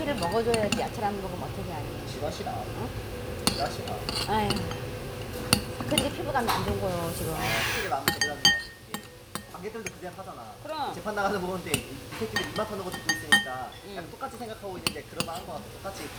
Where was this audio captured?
in a restaurant